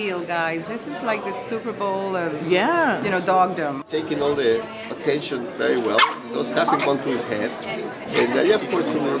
The dog is barking while the man and woman speaking